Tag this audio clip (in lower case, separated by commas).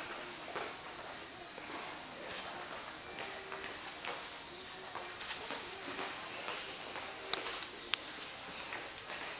footsteps, music